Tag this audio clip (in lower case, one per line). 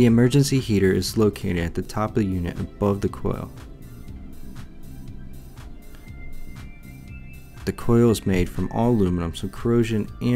speech
music